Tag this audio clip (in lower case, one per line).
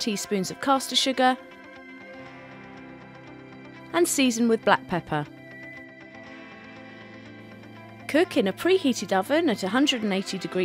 speech
music